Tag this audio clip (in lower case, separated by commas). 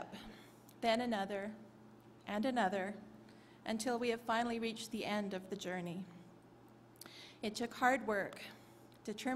female speech, speech, narration